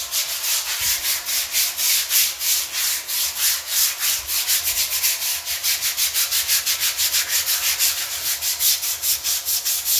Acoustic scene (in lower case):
restroom